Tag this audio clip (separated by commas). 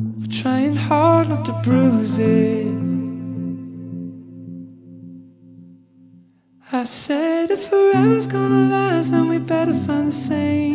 Music